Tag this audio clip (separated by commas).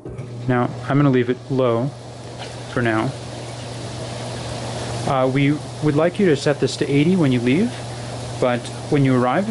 Speech